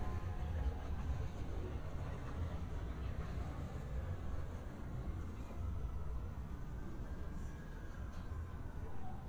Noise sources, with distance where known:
background noise

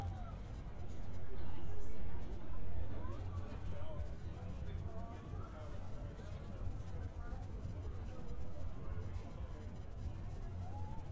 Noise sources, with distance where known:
person or small group talking, far

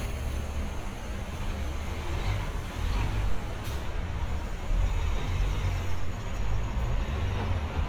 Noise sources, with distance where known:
large-sounding engine, near

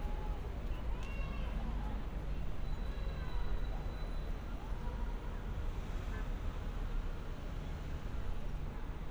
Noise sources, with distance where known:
medium-sounding engine, far; car horn, far; person or small group talking

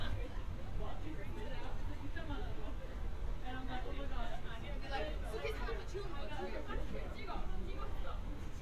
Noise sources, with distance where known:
person or small group talking

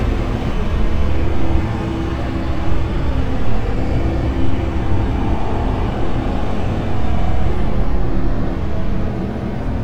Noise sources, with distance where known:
unidentified impact machinery, near

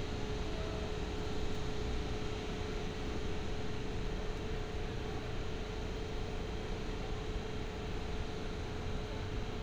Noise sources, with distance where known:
engine of unclear size

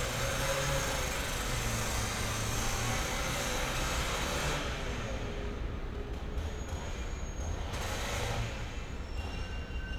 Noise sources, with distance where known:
unidentified powered saw, near

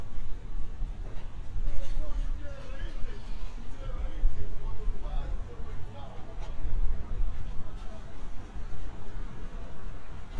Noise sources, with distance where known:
person or small group shouting

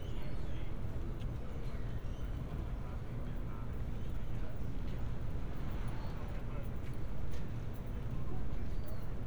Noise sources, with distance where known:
person or small group talking

